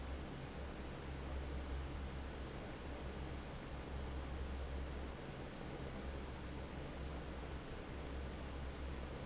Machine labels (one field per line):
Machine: fan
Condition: normal